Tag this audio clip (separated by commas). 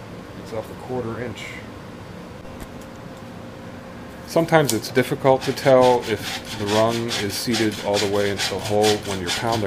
Speech, Wood